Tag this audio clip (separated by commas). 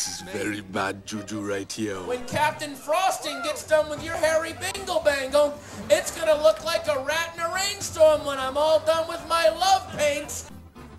Speech, Music